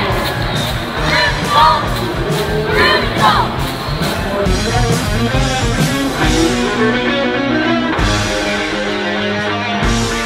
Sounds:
music, inside a large room or hall, speech

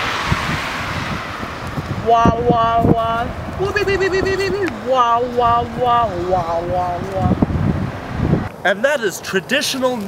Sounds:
speech

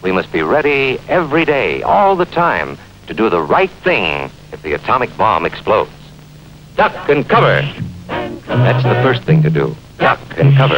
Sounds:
speech, music

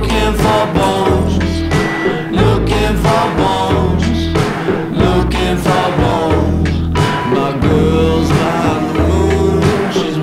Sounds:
music

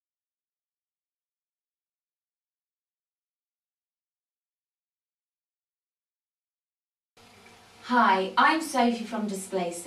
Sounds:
speech

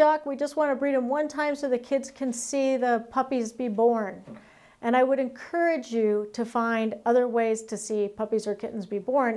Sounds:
speech

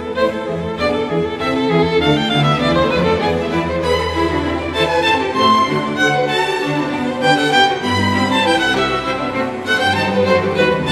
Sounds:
music, violin, orchestra, musical instrument

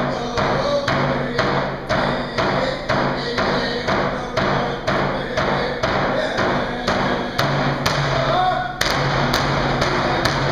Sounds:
music, drum

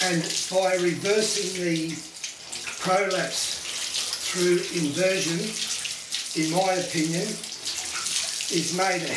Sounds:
faucet, water

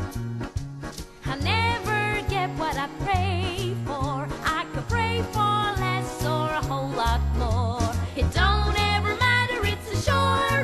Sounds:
music

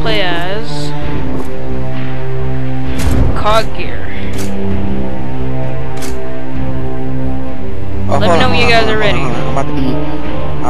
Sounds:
music, speech

